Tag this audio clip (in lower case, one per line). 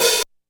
cymbal
hi-hat
music
musical instrument
percussion